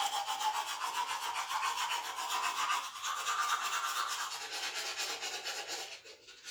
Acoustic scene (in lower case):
restroom